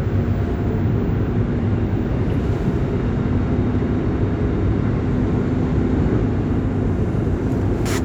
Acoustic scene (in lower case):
subway train